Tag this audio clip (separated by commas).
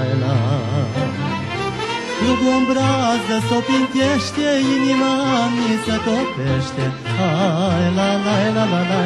Music